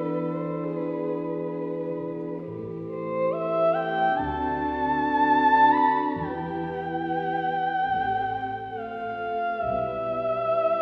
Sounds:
playing theremin

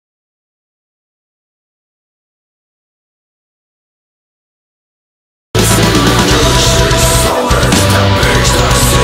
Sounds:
Rock music, Heavy metal, Music, Singing

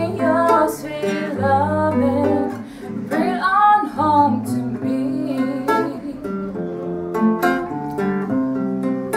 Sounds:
Music, Tender music

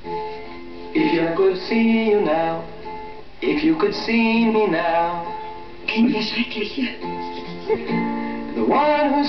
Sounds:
Male singing, Music

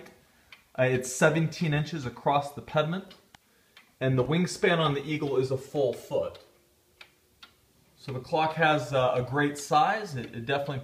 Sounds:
Speech, Tick-tock

